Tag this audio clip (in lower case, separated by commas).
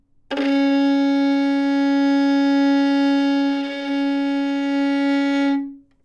bowed string instrument, music, musical instrument